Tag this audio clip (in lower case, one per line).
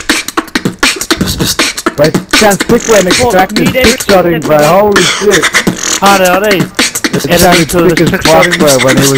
beat boxing